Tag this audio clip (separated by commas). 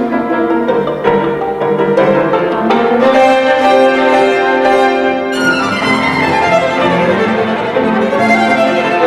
Music, Violin, Musical instrument